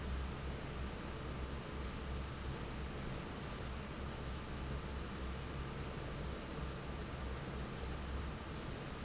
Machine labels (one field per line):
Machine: fan